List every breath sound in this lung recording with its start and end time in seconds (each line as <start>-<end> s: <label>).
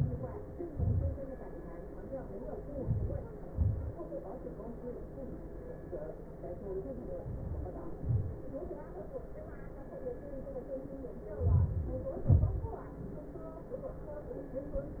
0.13-0.93 s: inhalation
1.00-1.61 s: exhalation
2.50-3.27 s: inhalation
3.24-3.91 s: exhalation
7.00-8.01 s: inhalation
7.99-8.77 s: exhalation
10.98-12.07 s: inhalation
12.14-13.00 s: exhalation